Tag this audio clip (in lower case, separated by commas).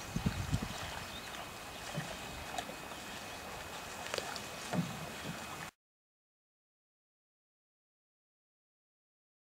vehicle, water vehicle, canoe, rowboat